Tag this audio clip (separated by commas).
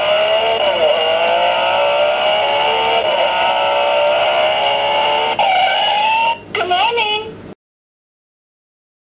Speech